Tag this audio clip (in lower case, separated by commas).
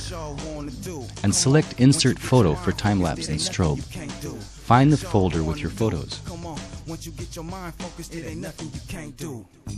speech, music